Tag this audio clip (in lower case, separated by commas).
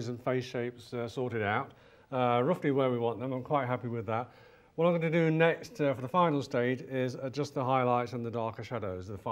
speech